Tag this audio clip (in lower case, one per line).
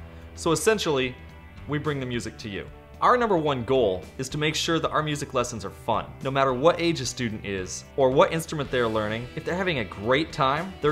music
background music
speech